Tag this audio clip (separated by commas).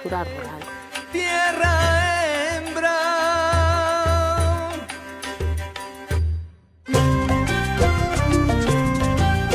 Speech, Middle Eastern music, Music